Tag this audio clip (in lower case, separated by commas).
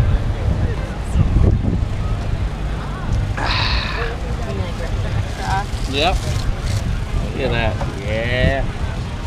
outside, rural or natural, speech